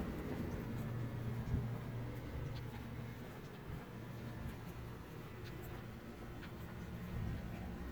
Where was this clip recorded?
in a residential area